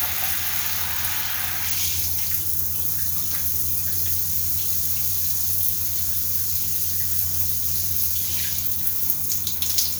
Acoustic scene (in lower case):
restroom